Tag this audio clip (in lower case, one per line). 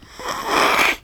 respiratory sounds